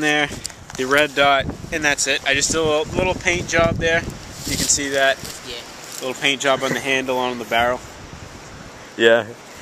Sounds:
Speech

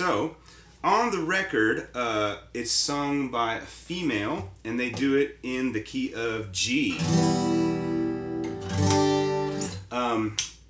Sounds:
Guitar, Speech, Strum, Plucked string instrument, Musical instrument

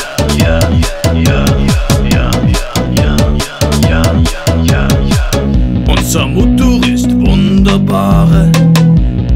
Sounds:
Dance music, Music, Rock music

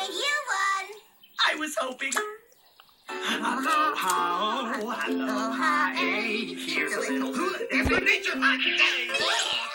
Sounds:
Speech, Music

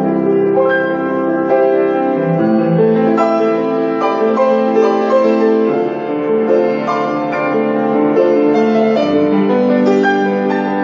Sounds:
Music

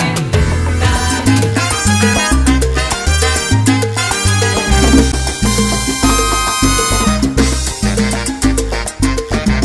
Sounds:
Music, Salsa music

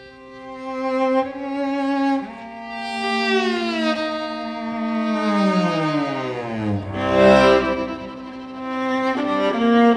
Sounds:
String section

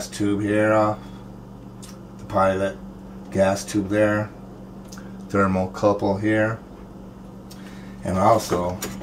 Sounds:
Speech

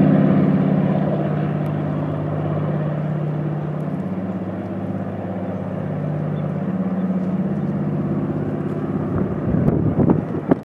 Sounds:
outside, rural or natural, Vehicle, Aircraft

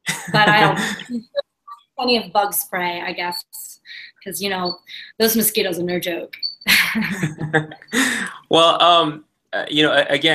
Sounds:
Speech

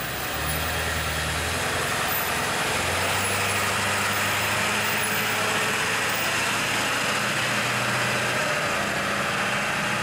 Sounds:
Vehicle, Truck

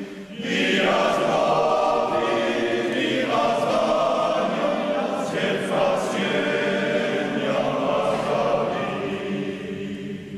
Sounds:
Mantra

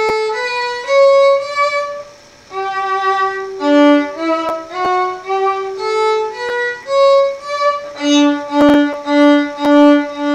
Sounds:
Musical instrument, Music, Violin

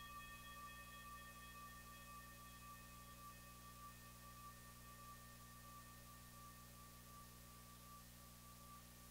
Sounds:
Reverberation, Music

